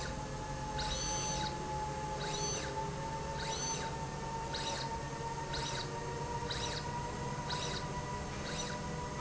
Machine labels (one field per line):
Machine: slide rail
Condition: abnormal